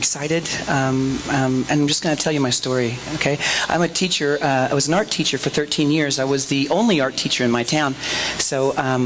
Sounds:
speech

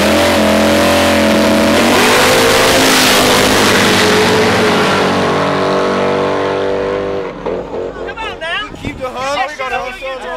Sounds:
speech, outside, rural or natural, race car, vehicle

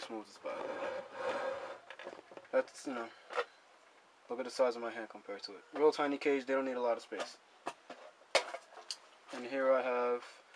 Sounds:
speech

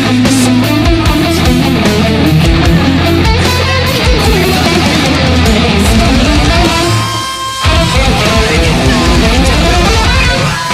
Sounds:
music, heavy metal, plucked string instrument, guitar, inside a small room, musical instrument

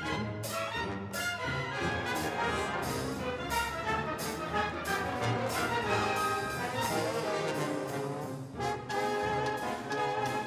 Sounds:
rattle, music

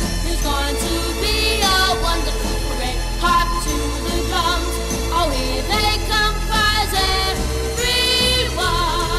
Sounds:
music

